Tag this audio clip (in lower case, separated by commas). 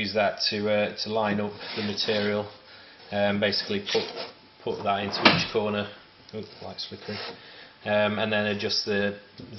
speech